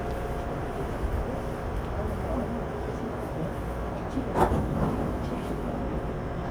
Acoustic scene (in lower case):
subway train